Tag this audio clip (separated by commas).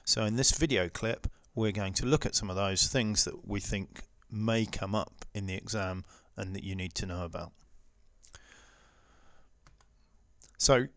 Speech